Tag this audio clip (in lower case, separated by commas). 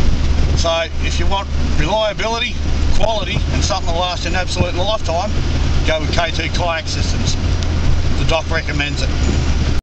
speech, vehicle